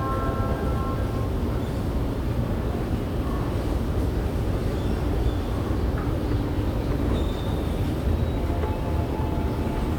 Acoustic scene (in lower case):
subway station